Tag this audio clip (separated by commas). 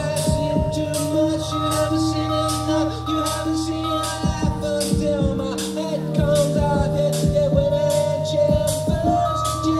Singing, Music, Electronic music, Electronica